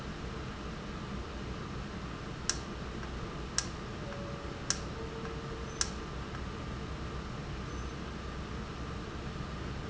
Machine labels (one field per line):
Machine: valve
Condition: normal